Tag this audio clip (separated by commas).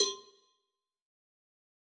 Bell, Cowbell